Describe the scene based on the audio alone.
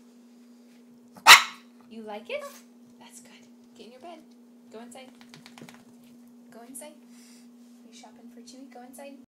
A dog barking and a woman speaking